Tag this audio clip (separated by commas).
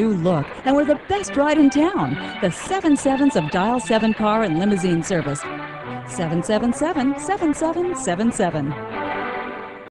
Music, Speech